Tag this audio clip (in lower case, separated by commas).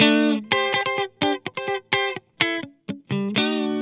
musical instrument, guitar, electric guitar, music, plucked string instrument